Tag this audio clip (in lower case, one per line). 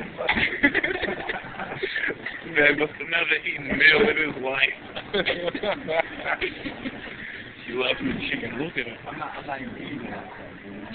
speech